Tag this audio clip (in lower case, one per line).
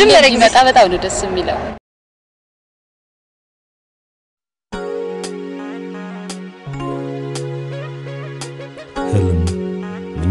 music
speech
tender music